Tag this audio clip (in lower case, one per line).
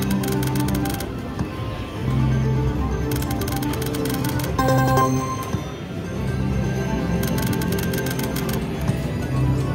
slot machine